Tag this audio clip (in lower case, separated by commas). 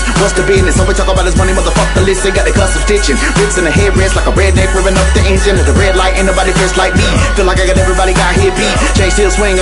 music, hip hop music